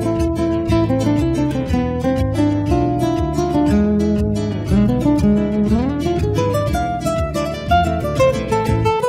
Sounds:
Music, Electric guitar, Musical instrument, Guitar

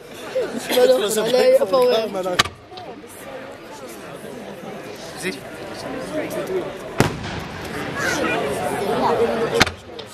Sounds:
Speech, Fireworks

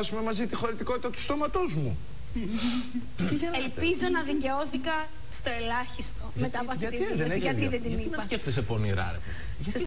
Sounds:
Speech

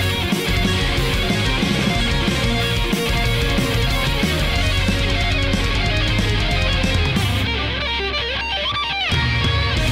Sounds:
Music

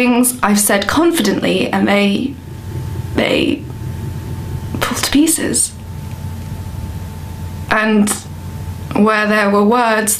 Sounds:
monologue, Speech

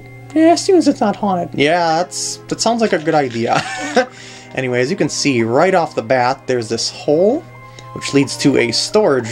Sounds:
Music, Speech

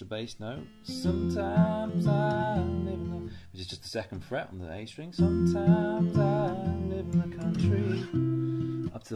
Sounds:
Acoustic guitar, Speech, Plucked string instrument, Music, Guitar

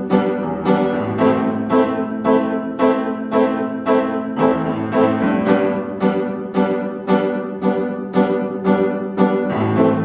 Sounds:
Piano, Musical instrument, Music

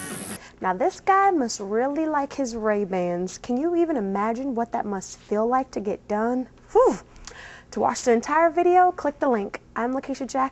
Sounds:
Speech

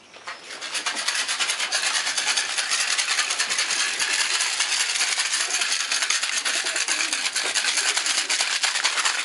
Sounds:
Bird, dove

